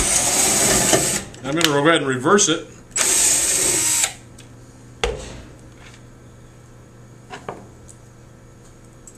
Rustling followed by male speech, drilling then more rustling